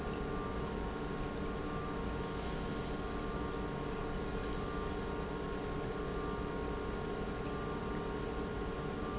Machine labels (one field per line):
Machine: pump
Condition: normal